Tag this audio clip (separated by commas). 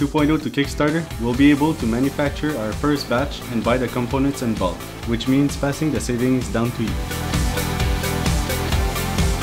Music, Speech